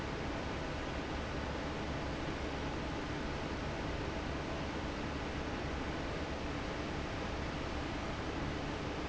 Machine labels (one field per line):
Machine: fan